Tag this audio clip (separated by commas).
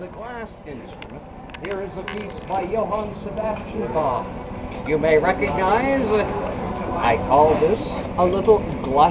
Speech